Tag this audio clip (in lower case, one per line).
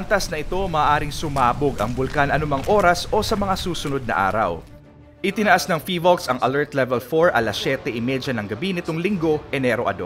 volcano explosion